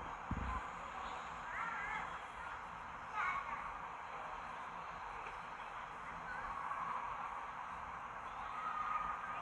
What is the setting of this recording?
park